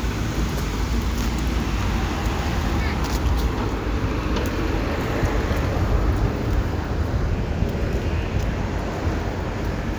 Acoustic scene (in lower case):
residential area